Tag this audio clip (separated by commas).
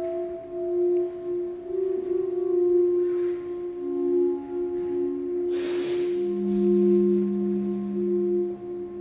Singing bowl